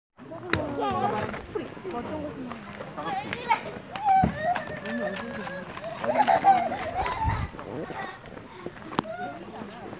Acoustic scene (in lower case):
park